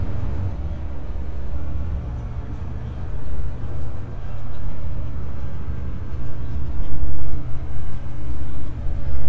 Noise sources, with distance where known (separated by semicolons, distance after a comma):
large-sounding engine, near